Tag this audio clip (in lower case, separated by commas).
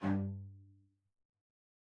musical instrument, music, bowed string instrument